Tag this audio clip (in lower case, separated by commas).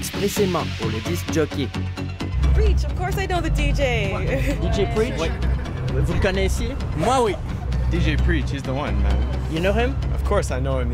speech, music